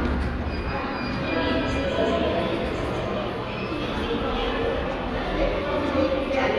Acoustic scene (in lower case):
subway station